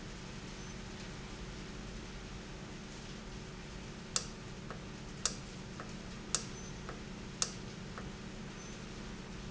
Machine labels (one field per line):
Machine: valve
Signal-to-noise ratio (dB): 0 dB